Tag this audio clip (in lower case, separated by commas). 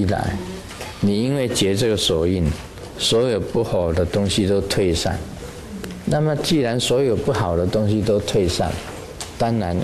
speech